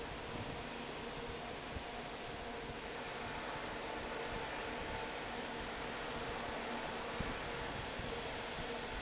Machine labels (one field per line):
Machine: fan